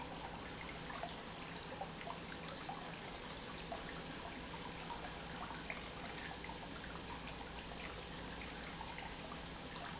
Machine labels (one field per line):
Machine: pump